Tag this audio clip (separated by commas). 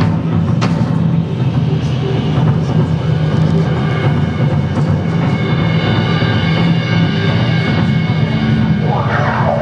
Music, Psychedelic rock, Drum kit, Drum, Musical instrument